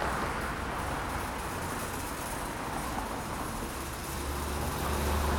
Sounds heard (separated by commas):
car engine accelerating, car wheels rolling, unclassified sound, car